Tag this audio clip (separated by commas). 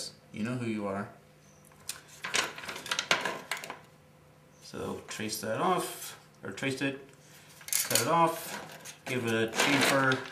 Speech